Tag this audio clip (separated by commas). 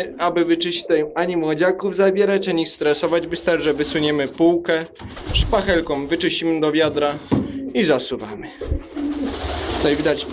Speech, inside a small room, dove